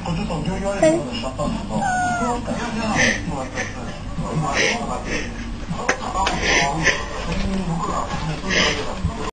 A person is speaking and a cat meows